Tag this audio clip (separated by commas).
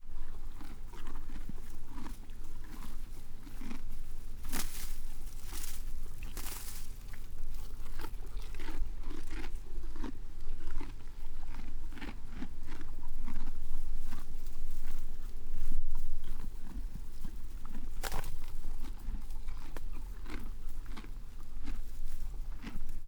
Animal, livestock